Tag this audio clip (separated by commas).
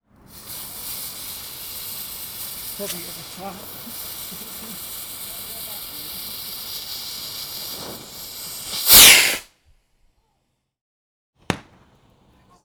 Explosion, Fireworks